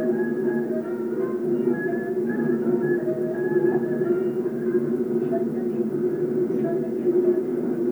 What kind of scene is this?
subway train